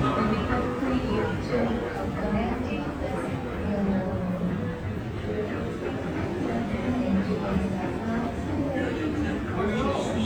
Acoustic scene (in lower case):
crowded indoor space